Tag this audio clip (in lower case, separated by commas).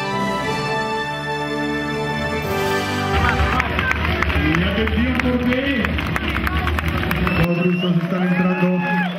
speech, music, outside, urban or man-made